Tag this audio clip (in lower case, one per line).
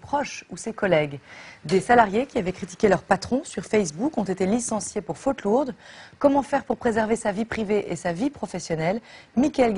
speech